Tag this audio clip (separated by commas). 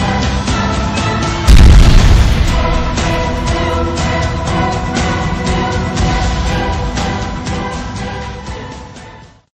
Music, Explosion